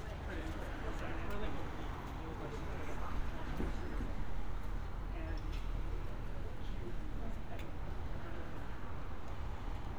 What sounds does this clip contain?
person or small group talking